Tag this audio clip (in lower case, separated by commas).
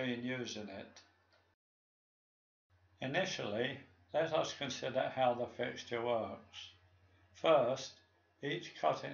speech